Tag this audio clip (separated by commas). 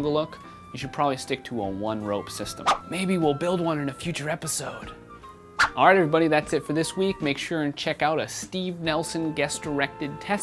Speech, Music